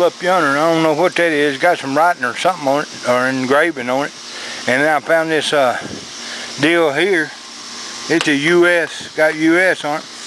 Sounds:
speech

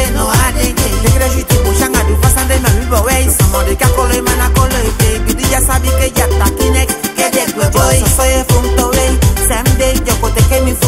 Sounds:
music

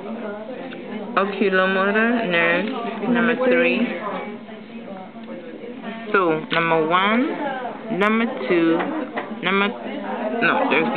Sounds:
speech

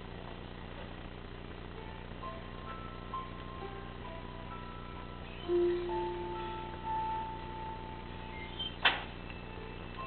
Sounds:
inside a large room or hall
music

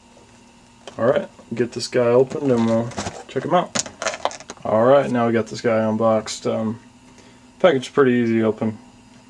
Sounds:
speech

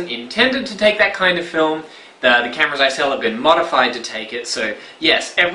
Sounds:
speech

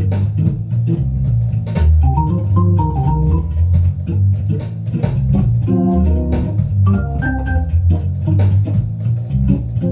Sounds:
playing hammond organ

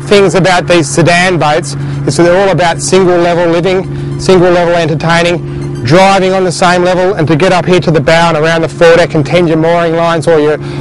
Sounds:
speech
speedboat
music
vehicle

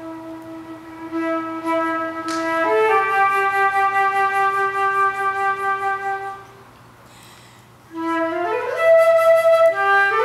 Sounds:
flute
music

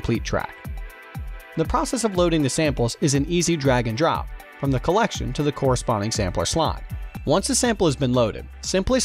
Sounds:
speech
music
sampler

